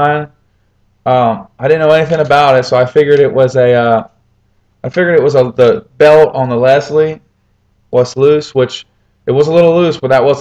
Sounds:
speech

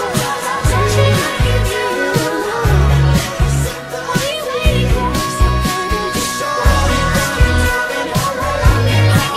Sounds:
music, pop music

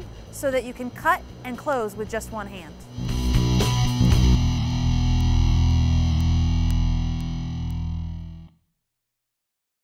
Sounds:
music, speech

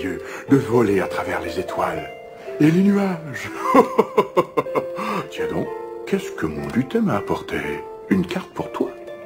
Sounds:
music, speech

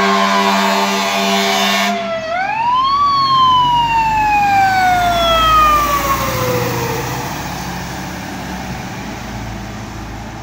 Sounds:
fire truck siren

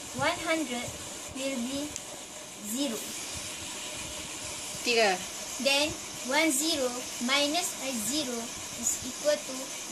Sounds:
speech, inside a small room

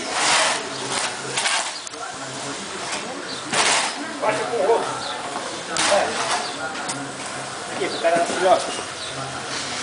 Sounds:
animal, speech, snake

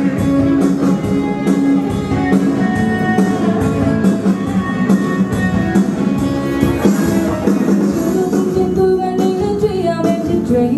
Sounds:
music

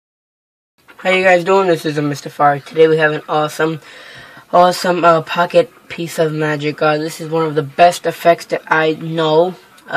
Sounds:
inside a small room, speech

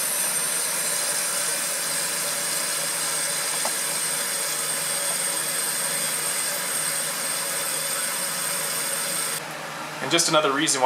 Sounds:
inside a small room, speech, steam

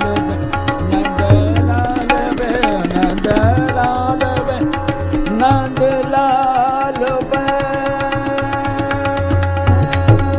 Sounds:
classical music, music, carnatic music, tabla

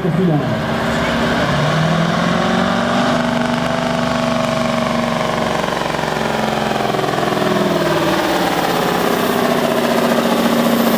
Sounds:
speech, vehicle, motor vehicle (road), truck

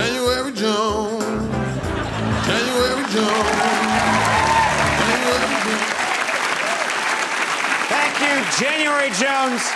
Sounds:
applause, music, speech

